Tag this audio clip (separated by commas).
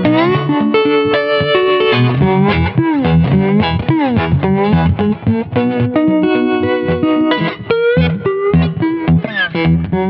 Music